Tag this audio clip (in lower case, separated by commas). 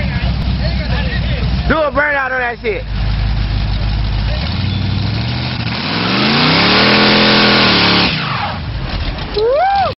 motor vehicle (road), car, speech, vehicle